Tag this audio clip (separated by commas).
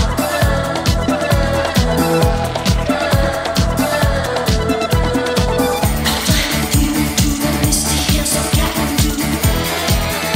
Disco, Music